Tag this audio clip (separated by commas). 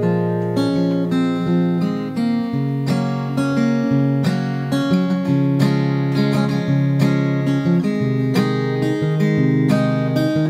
Musical instrument, Plucked string instrument, Music, Strum, Acoustic guitar, Guitar